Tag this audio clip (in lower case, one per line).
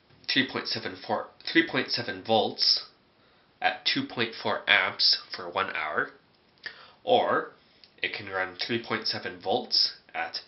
speech